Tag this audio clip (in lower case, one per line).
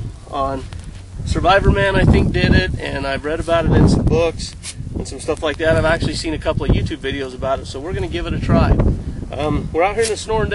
wind
fire
wind noise (microphone)